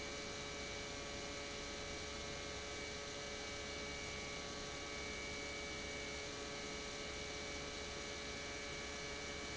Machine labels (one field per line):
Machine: pump